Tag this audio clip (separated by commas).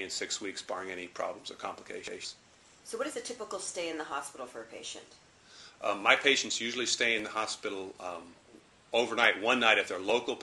inside a small room, Speech